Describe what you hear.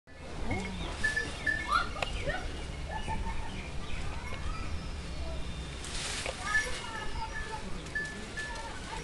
Birds chirp and people are talking